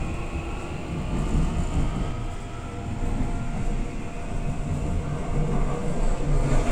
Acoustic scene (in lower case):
subway train